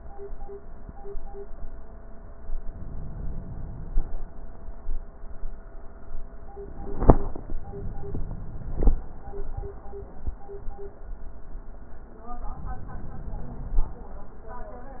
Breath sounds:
2.67-4.09 s: inhalation
12.49-13.92 s: inhalation

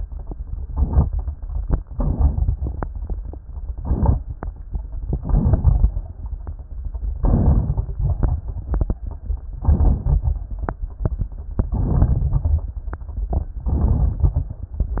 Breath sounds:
0.74-1.06 s: inhalation
0.74-1.06 s: crackles
1.92-2.56 s: inhalation
1.92-2.56 s: crackles
3.80-4.18 s: inhalation
3.80-4.18 s: crackles
5.14-5.92 s: inhalation
5.14-5.92 s: crackles
7.17-7.91 s: inhalation
7.17-7.91 s: crackles
9.60-10.34 s: inhalation
9.60-10.34 s: crackles
11.73-12.71 s: inhalation
11.73-12.71 s: crackles
13.72-14.61 s: inhalation
13.72-14.61 s: crackles

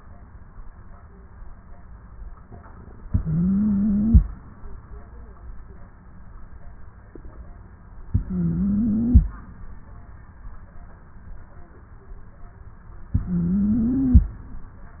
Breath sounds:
3.06-4.22 s: inhalation
3.06-4.22 s: stridor
8.11-9.27 s: inhalation
8.11-9.27 s: stridor
13.15-14.31 s: inhalation
13.15-14.31 s: stridor

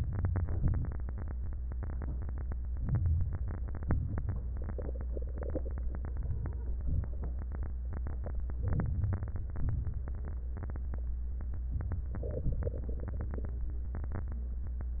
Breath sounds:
0.00-0.63 s: inhalation
0.64-1.27 s: exhalation
2.80-3.44 s: inhalation
3.90-4.53 s: exhalation
8.66-9.36 s: inhalation
9.36-10.09 s: exhalation

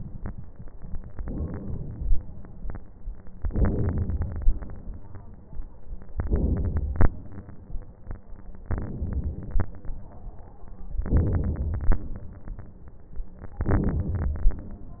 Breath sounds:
1.11-2.25 s: inhalation
3.42-4.62 s: inhalation
6.20-7.12 s: inhalation
8.67-9.69 s: inhalation
11.05-12.06 s: inhalation
13.62-14.64 s: inhalation

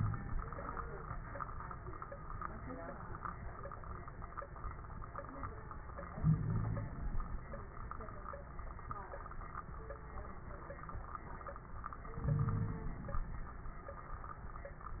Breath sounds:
6.15-6.87 s: wheeze
12.14-13.31 s: inhalation
12.32-12.87 s: wheeze

